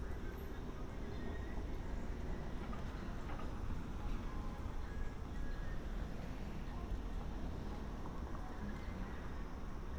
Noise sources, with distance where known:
music from an unclear source, far

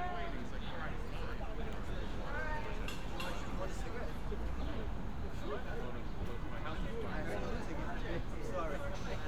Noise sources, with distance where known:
person or small group talking, near

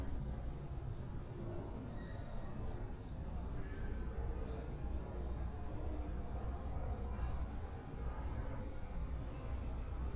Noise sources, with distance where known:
unidentified human voice, far

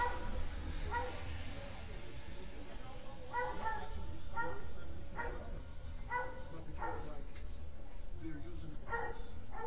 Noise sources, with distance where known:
person or small group talking, near; dog barking or whining, near

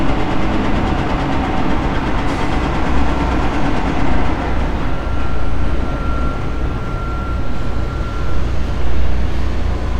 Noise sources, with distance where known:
reverse beeper, far

